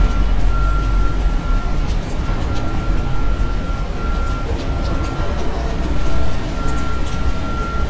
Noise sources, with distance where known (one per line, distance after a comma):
reverse beeper